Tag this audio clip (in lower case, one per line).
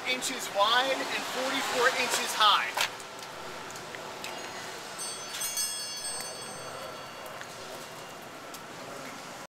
vehicle
speech